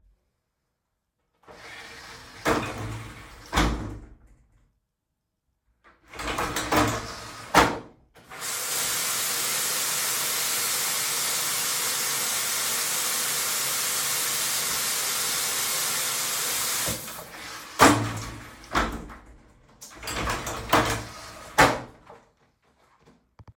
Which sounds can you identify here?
door, running water